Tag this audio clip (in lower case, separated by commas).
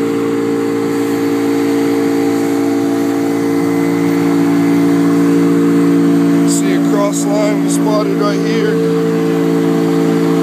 vehicle